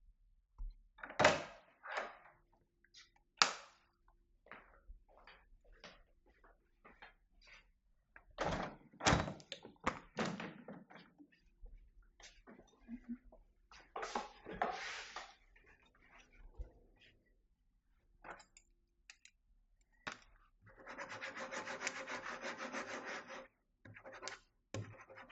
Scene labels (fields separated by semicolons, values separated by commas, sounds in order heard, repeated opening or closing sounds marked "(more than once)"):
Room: lavatory, bedroom; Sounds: door, light switch, footsteps, window